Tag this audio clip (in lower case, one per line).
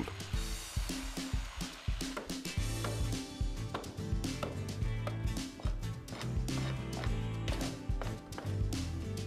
tap
music